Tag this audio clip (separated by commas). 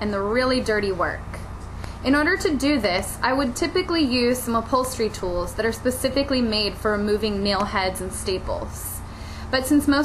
Speech